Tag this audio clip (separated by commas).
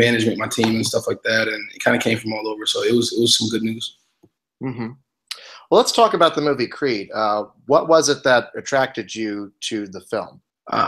Speech